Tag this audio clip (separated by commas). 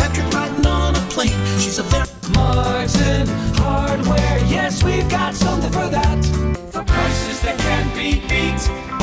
Music